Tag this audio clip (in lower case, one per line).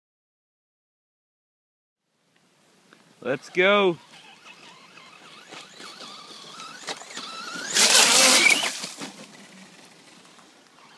speech